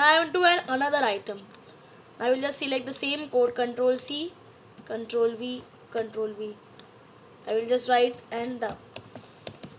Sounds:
Typing, Computer keyboard

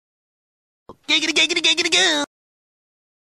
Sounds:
Speech

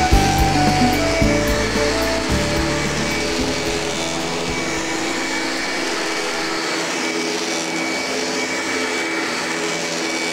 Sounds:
Vacuum cleaner

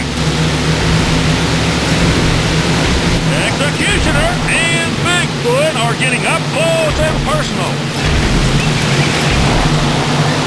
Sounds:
Vehicle, Speech

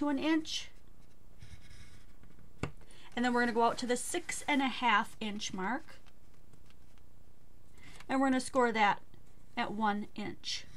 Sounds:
Speech, inside a small room, Silence

